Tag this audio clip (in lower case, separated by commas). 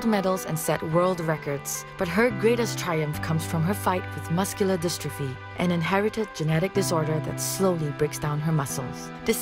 music, speech